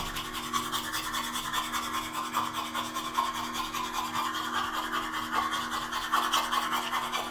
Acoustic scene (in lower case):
restroom